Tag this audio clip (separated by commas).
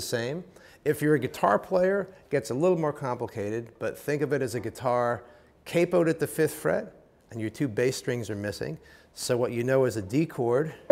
Speech